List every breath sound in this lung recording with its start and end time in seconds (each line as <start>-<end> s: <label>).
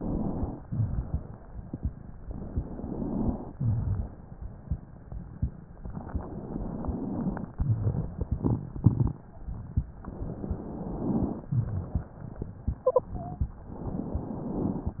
0.00-0.61 s: inhalation
0.59-2.14 s: exhalation
2.19-3.51 s: inhalation
3.55-4.33 s: crackles
3.55-5.71 s: exhalation
5.80-7.50 s: inhalation
7.59-9.98 s: exhalation
10.06-11.57 s: inhalation
11.48-13.74 s: exhalation
12.66-13.55 s: wheeze
13.73-15.00 s: inhalation